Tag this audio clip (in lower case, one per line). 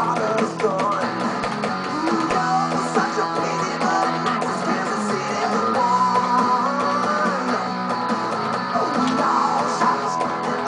plucked string instrument
guitar
music
musical instrument